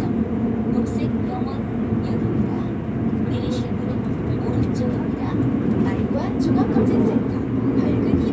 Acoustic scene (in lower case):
subway train